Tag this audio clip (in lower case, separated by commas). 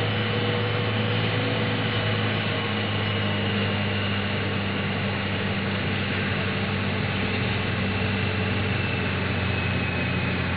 vehicle